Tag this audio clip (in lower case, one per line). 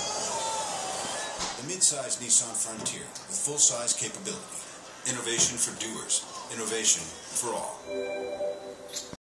music
speech
air brake
vehicle